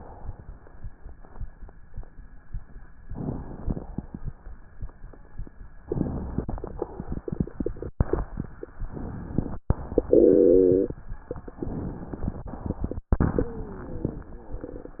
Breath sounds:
3.06-3.92 s: inhalation
5.83-6.67 s: inhalation
8.75-9.59 s: inhalation
11.55-12.39 s: inhalation

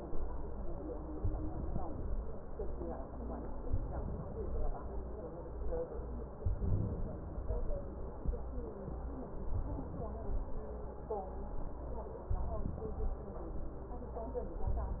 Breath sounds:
1.18-2.22 s: inhalation
3.69-4.73 s: inhalation
6.40-7.45 s: inhalation
9.56-10.60 s: inhalation
12.35-13.28 s: inhalation
14.69-15.00 s: inhalation

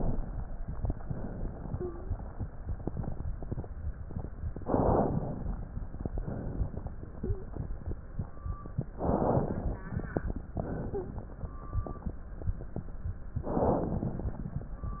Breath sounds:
0.99-1.96 s: exhalation
1.71-2.17 s: wheeze
4.57-5.58 s: inhalation
5.98-6.98 s: exhalation
7.17-7.53 s: wheeze
8.96-9.89 s: inhalation
10.55-11.48 s: exhalation
10.91-11.27 s: wheeze
13.43-14.48 s: inhalation

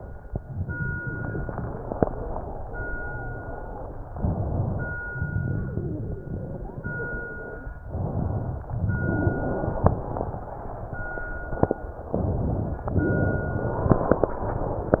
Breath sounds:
0.40-4.04 s: exhalation
4.08-5.02 s: inhalation
5.16-7.73 s: exhalation
7.89-8.74 s: inhalation
8.78-12.06 s: exhalation
12.15-12.87 s: inhalation
12.95-15.00 s: exhalation

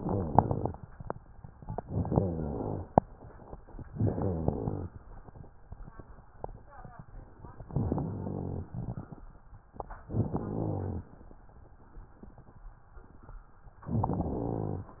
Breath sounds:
0.00-0.65 s: rhonchi
1.88-2.87 s: inhalation
1.88-2.87 s: rhonchi
3.93-4.92 s: inhalation
3.93-4.92 s: rhonchi
7.70-8.69 s: inhalation
7.70-8.69 s: rhonchi
8.73-9.22 s: rhonchi
10.11-11.08 s: inhalation
10.11-11.08 s: rhonchi
13.91-15.00 s: inhalation
13.91-15.00 s: rhonchi

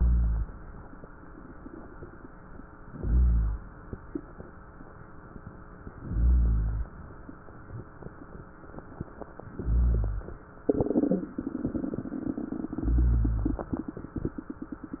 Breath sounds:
0.00-0.49 s: inhalation
2.92-3.70 s: inhalation
5.93-6.92 s: inhalation
9.39-10.38 s: inhalation
12.69-13.69 s: inhalation

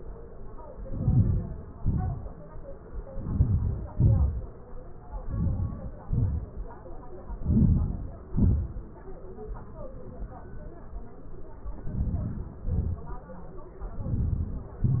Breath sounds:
0.92-1.58 s: inhalation
1.86-2.34 s: exhalation
3.16-3.77 s: inhalation
3.98-4.48 s: exhalation
5.29-5.93 s: inhalation
6.09-6.61 s: exhalation
7.48-8.21 s: inhalation
8.35-8.61 s: exhalation
11.90-12.51 s: inhalation
12.63-13.13 s: exhalation
14.13-14.74 s: inhalation
14.82-15.00 s: exhalation

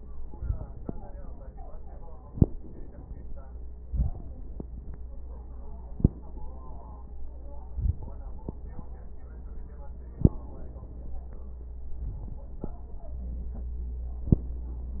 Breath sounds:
3.85-4.36 s: inhalation
7.70-8.21 s: inhalation
11.99-12.49 s: inhalation

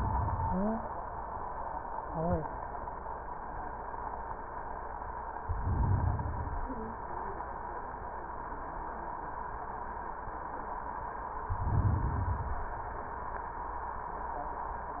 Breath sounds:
0.46-0.83 s: stridor
5.38-6.86 s: inhalation
11.36-12.84 s: inhalation

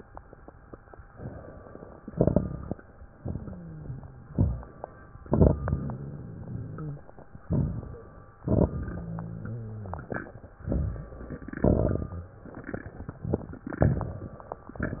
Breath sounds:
2.03-2.77 s: inhalation
2.03-2.77 s: crackles
3.19-3.59 s: exhalation
3.19-4.31 s: rhonchi
4.29-4.80 s: inhalation
4.29-4.80 s: crackles
5.28-6.02 s: exhalation
5.28-6.02 s: crackles
5.64-7.06 s: rhonchi
7.44-8.03 s: inhalation
7.44-8.03 s: crackles
8.46-8.92 s: crackles
8.46-10.08 s: exhalation
8.94-10.08 s: rhonchi
10.66-11.50 s: inhalation
10.66-11.50 s: crackles
11.59-12.43 s: exhalation
11.59-12.43 s: crackles

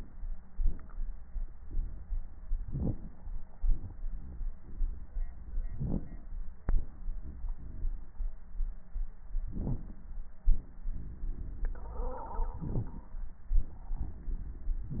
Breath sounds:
2.62-3.34 s: inhalation
2.62-3.34 s: crackles
3.61-5.22 s: exhalation
5.60-6.32 s: inhalation
5.60-6.32 s: crackles
6.58-8.20 s: exhalation
9.49-10.11 s: inhalation
9.49-10.11 s: crackles
12.56-13.19 s: inhalation

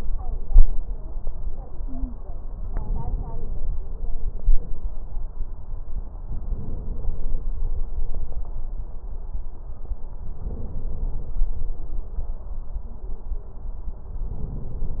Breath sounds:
1.78-2.16 s: stridor
2.62-3.69 s: inhalation
6.25-7.49 s: inhalation
10.38-11.37 s: inhalation
14.25-15.00 s: inhalation

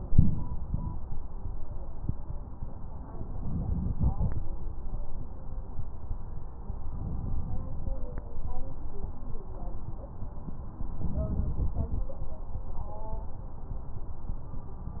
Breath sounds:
3.32-4.38 s: crackles
3.33-4.39 s: inhalation
6.92-7.98 s: inhalation
11.02-12.08 s: inhalation

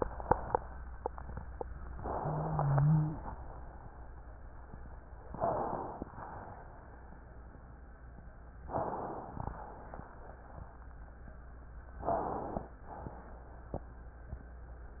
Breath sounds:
2.00-3.24 s: inhalation
2.00-3.24 s: wheeze
2.00-3.24 s: wheeze
5.30-5.74 s: wheeze
5.32-6.06 s: inhalation
6.06-6.78 s: exhalation
8.68-9.12 s: wheeze
8.68-9.34 s: inhalation
9.40-10.06 s: exhalation
12.02-12.40 s: wheeze
12.02-12.68 s: inhalation
12.90-13.56 s: exhalation

